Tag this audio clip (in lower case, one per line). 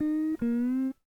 plucked string instrument
music
guitar
musical instrument